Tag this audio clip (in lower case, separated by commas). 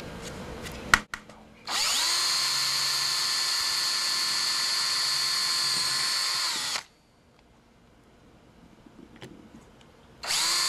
tools